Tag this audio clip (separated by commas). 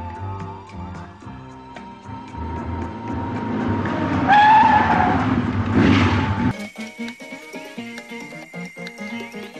Skidding, Music